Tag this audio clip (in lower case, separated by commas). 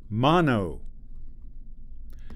male speech, human voice, speech